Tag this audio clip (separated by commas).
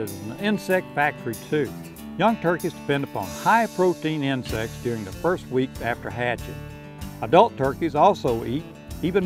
Speech, Music